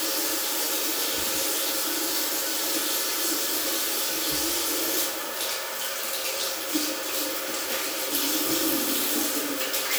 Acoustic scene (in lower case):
restroom